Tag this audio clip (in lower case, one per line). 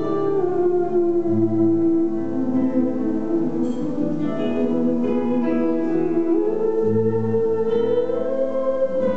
theremin
music
musical instrument